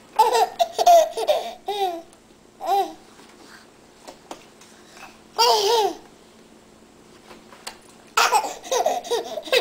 Infant baby laughing and giggling